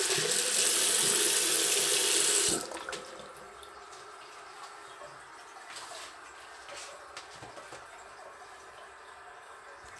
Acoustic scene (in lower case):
restroom